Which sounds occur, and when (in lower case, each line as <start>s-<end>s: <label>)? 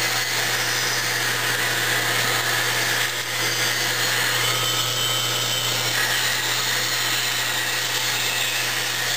0.0s-9.1s: mechanisms